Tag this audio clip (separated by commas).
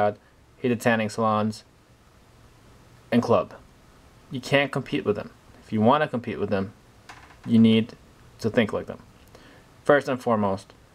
Speech